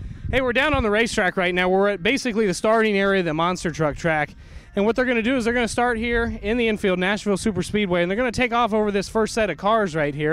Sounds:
Speech

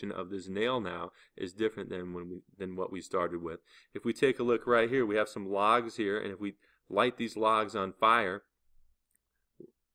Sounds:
Speech

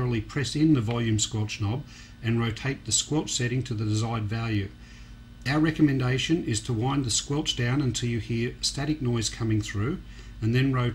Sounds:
Speech

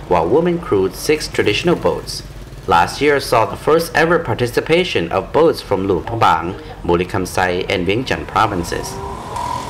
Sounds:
Boat, speedboat, Speech, Vehicle

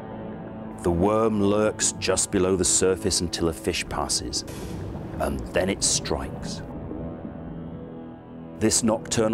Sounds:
Speech

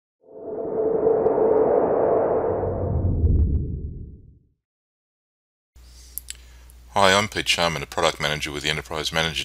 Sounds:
Speech

